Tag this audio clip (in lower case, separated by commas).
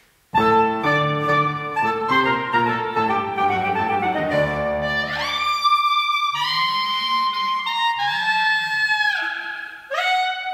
musical instrument, music, piano, clarinet, playing clarinet